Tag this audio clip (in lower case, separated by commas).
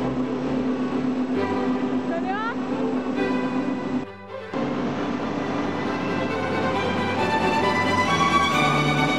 speech